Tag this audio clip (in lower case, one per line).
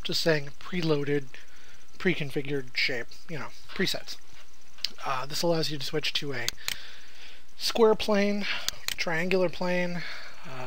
speech